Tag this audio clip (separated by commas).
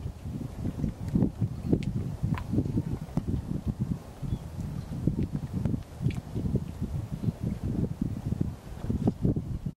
Wind noise (microphone)